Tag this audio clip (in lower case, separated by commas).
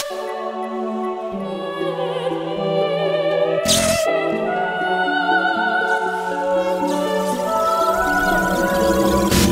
music